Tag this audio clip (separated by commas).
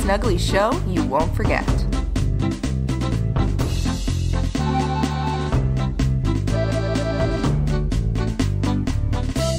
Speech, Music